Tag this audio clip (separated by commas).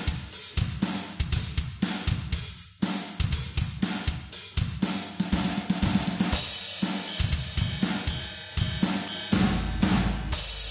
Music, Hi-hat